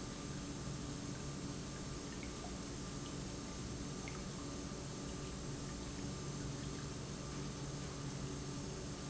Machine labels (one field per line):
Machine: pump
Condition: normal